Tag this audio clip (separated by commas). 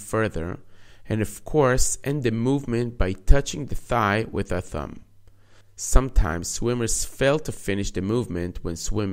Speech